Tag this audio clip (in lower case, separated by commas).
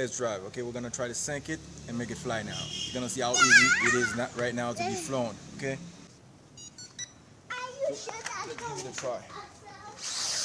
speech